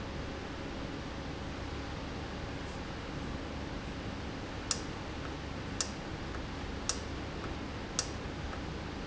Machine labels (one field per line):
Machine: valve